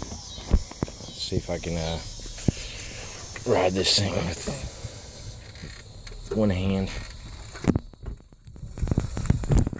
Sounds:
speech
vehicle
bicycle

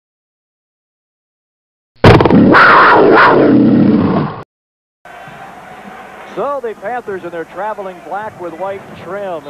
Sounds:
speech
inside a large room or hall

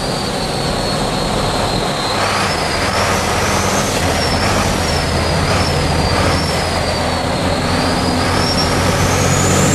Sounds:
vehicle
truck

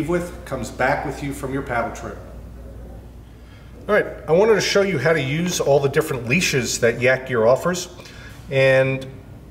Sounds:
speech

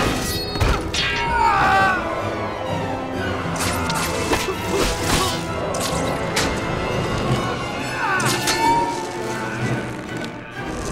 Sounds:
music

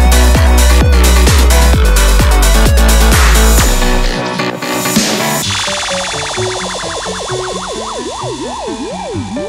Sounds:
music

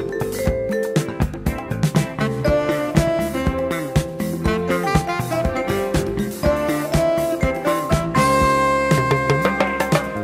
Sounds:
musical instrument
vibraphone
swing music
music
soul music
xylophone

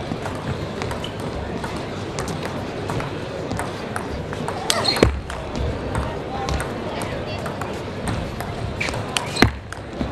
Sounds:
playing table tennis

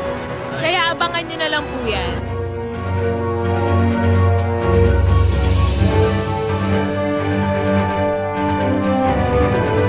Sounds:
theme music

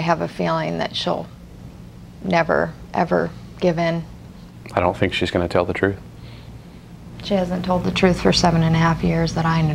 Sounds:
speech
inside a small room

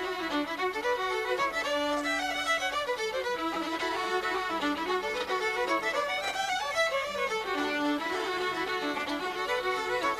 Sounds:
musical instrument
music
violin

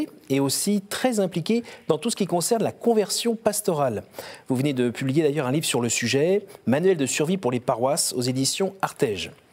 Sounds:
speech

